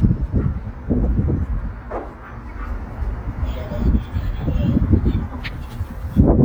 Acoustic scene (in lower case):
residential area